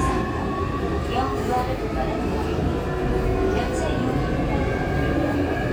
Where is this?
on a subway train